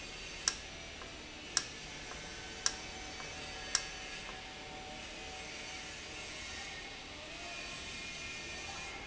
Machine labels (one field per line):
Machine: valve